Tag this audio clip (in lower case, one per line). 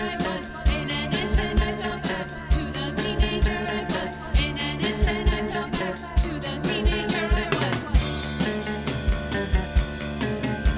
music
jazz